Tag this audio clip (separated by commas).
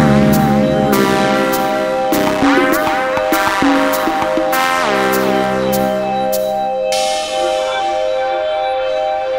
Techno, Music, Electronica